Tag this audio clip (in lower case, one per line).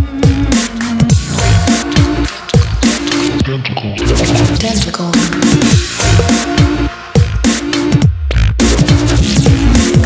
sound effect